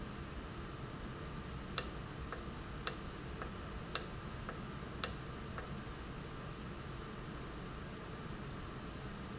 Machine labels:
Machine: valve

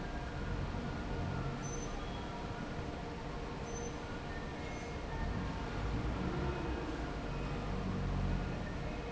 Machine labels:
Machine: fan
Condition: normal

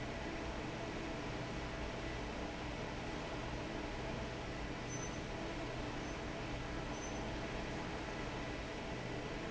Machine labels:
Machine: fan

